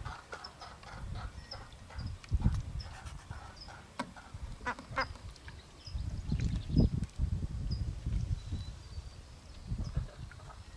Ducks are quacking and swimming